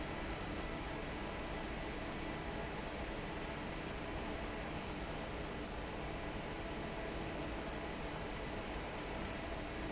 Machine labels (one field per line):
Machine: fan